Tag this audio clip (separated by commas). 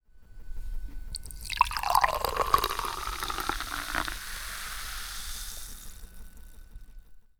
Liquid